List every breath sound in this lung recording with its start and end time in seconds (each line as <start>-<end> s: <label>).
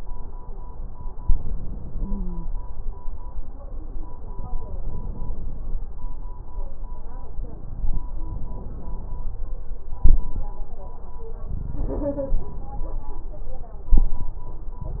1.98-2.47 s: wheeze
4.83-5.93 s: inhalation
8.29-9.39 s: inhalation
9.98-10.52 s: exhalation
13.86-14.41 s: exhalation